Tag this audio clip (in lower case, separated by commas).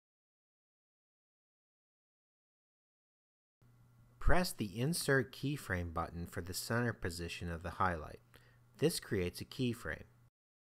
speech